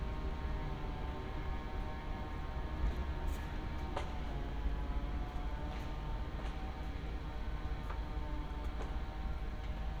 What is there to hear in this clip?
unidentified powered saw